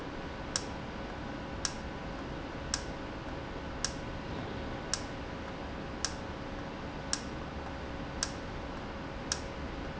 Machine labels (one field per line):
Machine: valve